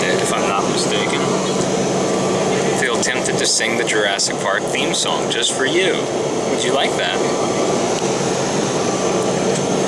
A man speaks, a large hum